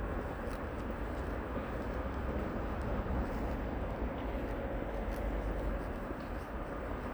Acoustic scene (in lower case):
residential area